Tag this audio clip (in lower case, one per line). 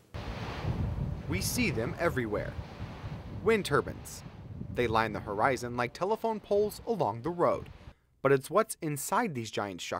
speech